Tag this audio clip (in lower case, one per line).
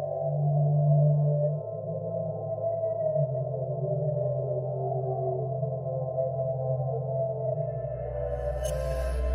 music